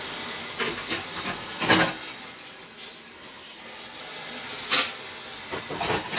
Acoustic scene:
kitchen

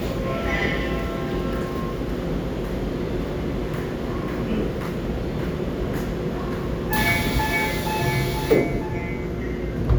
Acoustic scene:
subway train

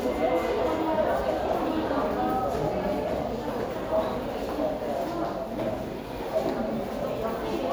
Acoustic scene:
subway station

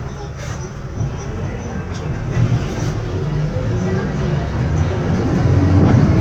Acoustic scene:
bus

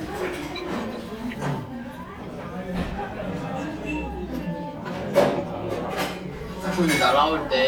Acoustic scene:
crowded indoor space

